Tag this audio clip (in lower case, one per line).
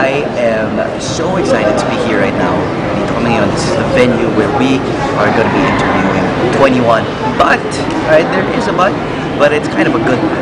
speech
inside a public space